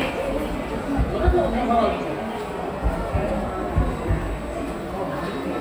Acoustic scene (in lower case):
subway station